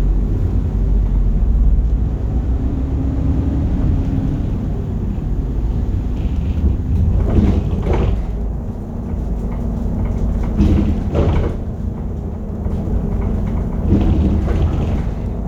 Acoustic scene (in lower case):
bus